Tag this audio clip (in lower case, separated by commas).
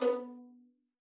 musical instrument, bowed string instrument, music